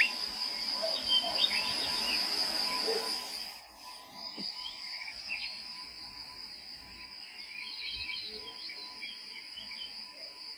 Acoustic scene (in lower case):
park